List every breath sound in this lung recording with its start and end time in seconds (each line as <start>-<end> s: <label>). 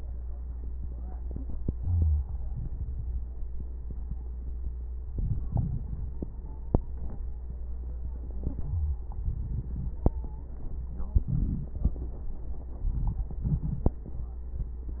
1.77-2.31 s: inhalation
1.77-2.31 s: wheeze
2.29-3.21 s: exhalation
2.29-3.21 s: crackles
4.96-5.44 s: inhalation
5.46-6.59 s: exhalation
6.00-7.38 s: stridor
8.27-9.09 s: inhalation
8.60-9.03 s: wheeze
9.08-10.00 s: exhalation
9.84-10.83 s: stridor
11.11-11.73 s: inhalation
11.11-11.73 s: crackles
12.74-13.33 s: crackles
12.75-13.37 s: inhalation
13.36-14.03 s: exhalation
13.37-14.03 s: crackles